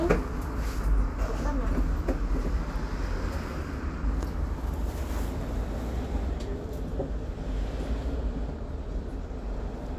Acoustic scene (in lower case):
bus